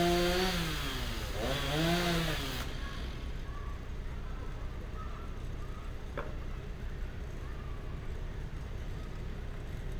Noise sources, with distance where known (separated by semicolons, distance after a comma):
chainsaw, near; person or small group shouting, far